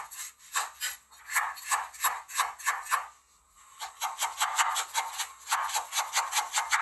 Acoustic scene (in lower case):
kitchen